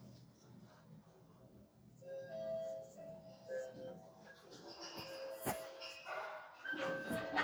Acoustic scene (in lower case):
elevator